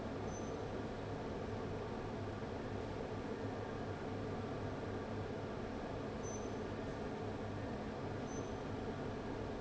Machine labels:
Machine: fan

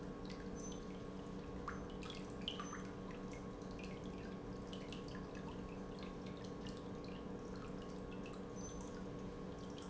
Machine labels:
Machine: pump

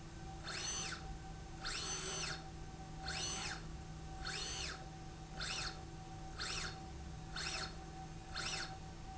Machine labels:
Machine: slide rail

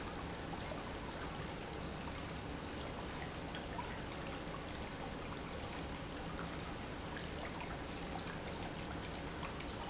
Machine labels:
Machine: pump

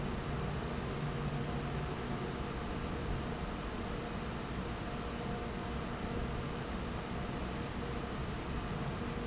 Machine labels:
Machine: fan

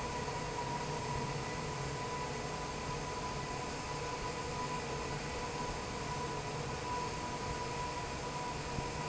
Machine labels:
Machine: fan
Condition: normal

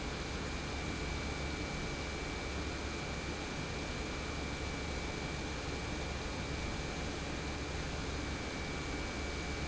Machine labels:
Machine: pump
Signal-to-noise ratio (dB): -6 dB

